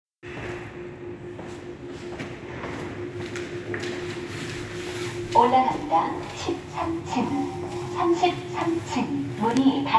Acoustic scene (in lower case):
elevator